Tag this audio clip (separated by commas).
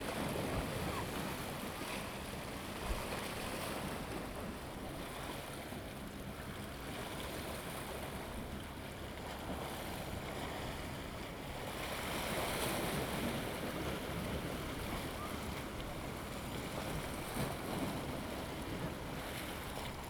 Ocean, Water, surf